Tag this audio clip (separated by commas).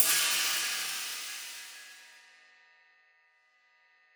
Percussion, Cymbal, Music, Musical instrument